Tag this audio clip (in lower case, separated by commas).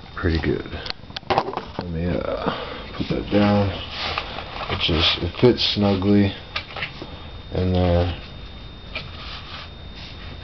speech